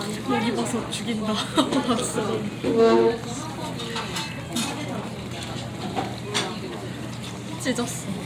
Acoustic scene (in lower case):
crowded indoor space